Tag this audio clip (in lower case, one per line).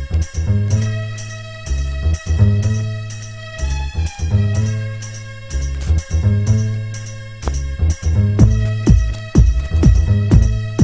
music